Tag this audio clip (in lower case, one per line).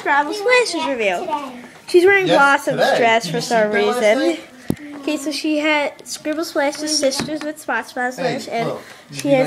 speech